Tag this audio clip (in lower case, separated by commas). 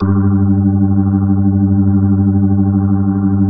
keyboard (musical), organ, music, musical instrument